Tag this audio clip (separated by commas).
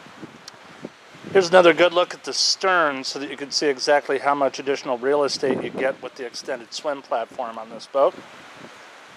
Speech